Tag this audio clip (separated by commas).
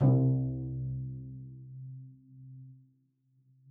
Bowed string instrument, Musical instrument, Music